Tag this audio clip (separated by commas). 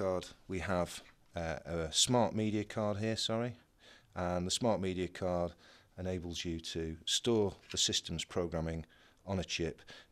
Speech